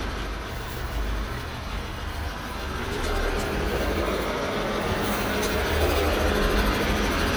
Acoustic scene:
residential area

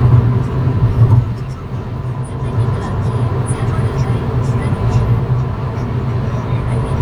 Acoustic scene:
car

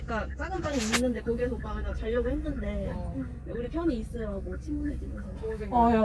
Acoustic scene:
car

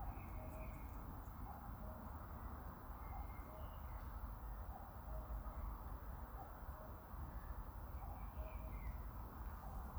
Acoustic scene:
park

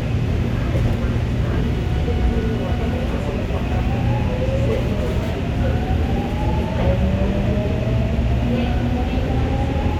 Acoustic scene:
subway train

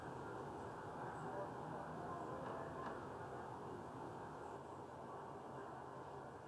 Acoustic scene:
residential area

